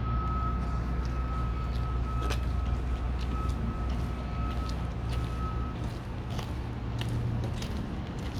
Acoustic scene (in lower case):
residential area